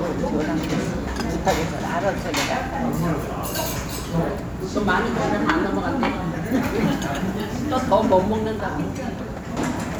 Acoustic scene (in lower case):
restaurant